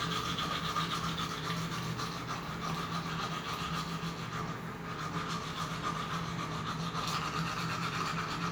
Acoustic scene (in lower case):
restroom